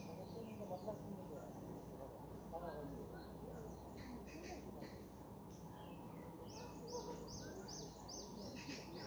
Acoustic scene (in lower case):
park